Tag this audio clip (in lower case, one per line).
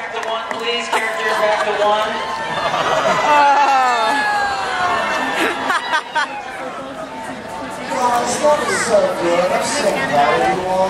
outside, urban or man-made
chatter
speech